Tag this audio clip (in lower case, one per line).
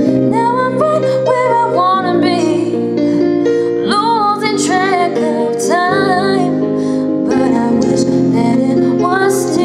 female singing
music